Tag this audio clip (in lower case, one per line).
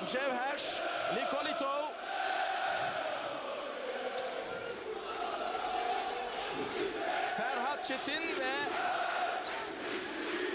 speech